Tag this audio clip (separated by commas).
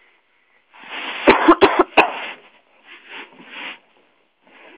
Cough, Respiratory sounds